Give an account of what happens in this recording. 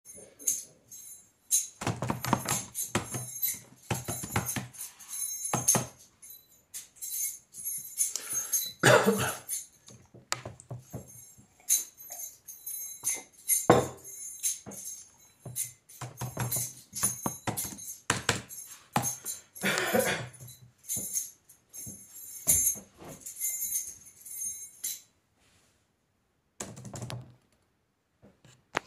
My friend is in the couch juggling and playing with his keychain. I am on the chair working on my laptop.